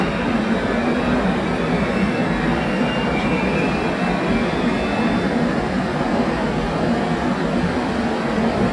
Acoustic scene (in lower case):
subway station